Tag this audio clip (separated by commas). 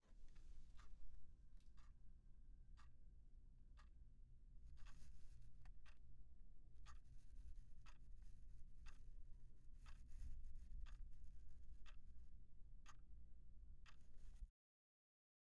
Clock, Mechanisms